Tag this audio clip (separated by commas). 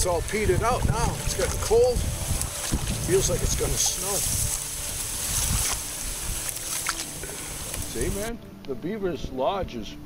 outside, rural or natural, Speech, Music